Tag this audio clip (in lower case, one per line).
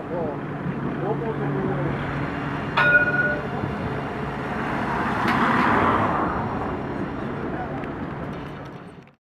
speech